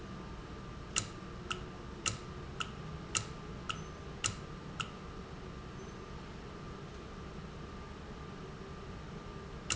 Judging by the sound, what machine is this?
valve